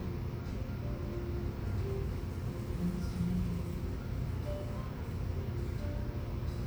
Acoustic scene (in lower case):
cafe